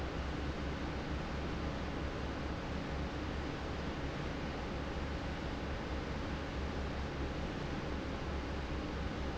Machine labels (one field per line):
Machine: fan